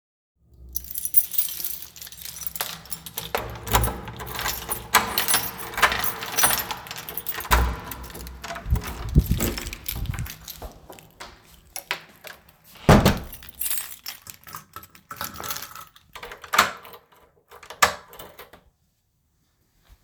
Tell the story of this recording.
I used my keys to open the door. Then i closed the door behind me and used the keys to lock it.